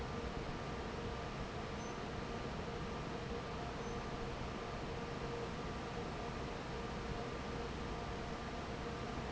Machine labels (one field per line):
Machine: fan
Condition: normal